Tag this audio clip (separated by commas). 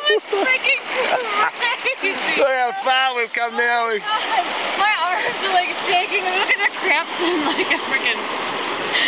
Speech, Stream